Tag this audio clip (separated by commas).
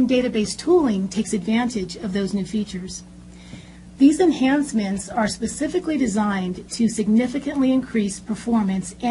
Speech